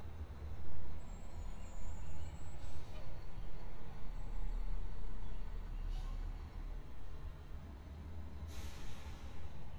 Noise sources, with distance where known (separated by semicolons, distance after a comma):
large-sounding engine